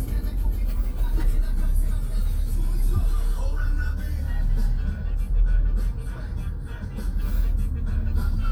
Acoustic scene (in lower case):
car